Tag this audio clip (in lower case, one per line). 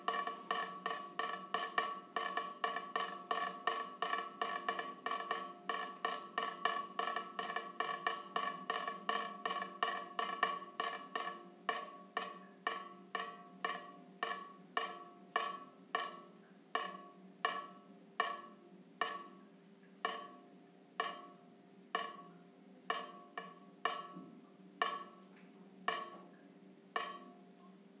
liquid
water tap
drip
home sounds